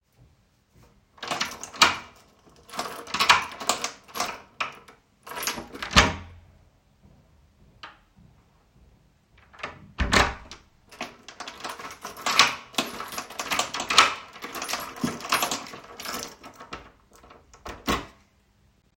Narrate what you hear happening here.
I unlock the door with key, open it, then close it and lock it with key